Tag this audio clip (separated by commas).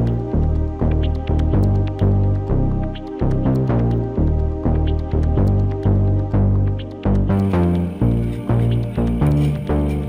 Music